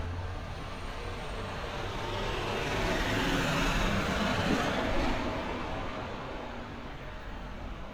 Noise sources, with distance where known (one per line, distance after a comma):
large-sounding engine, near